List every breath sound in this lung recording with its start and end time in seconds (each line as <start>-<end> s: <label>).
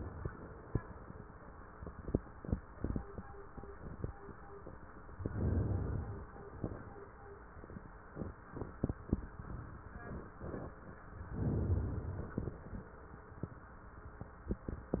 5.13-6.26 s: inhalation
11.34-12.58 s: inhalation